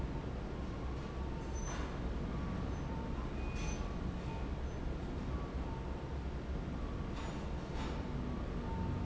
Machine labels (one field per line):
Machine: fan